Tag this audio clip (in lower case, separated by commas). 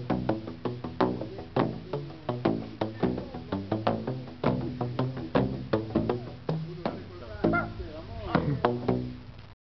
speech, music